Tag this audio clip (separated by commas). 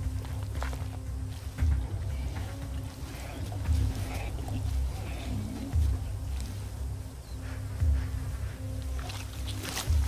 cheetah chirrup